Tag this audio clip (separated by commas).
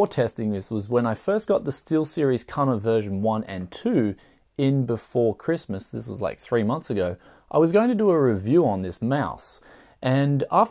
Speech